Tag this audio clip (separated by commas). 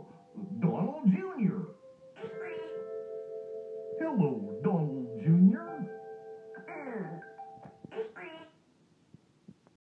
Speech, Music